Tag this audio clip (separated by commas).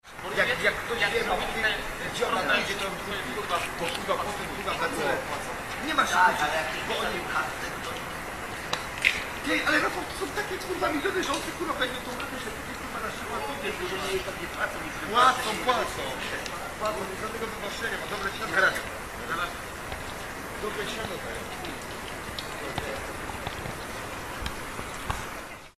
Human voice, Conversation, Speech